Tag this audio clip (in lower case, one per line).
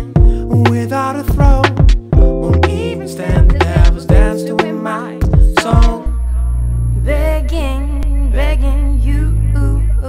music